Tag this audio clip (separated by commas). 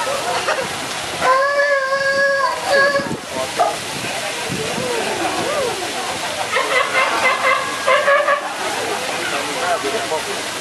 sea lion barking